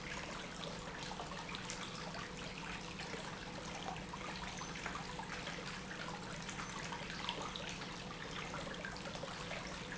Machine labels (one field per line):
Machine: pump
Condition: normal